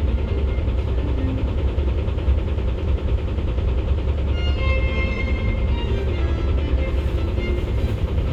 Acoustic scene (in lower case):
bus